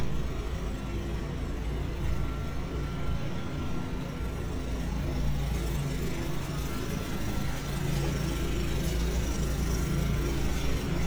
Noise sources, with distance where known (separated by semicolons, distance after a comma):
engine of unclear size